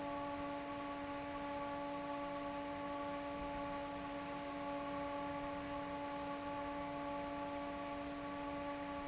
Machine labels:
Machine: fan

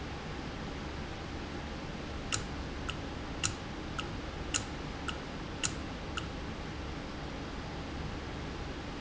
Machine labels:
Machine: valve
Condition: normal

